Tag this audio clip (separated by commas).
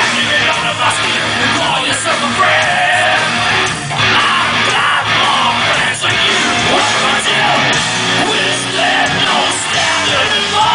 Music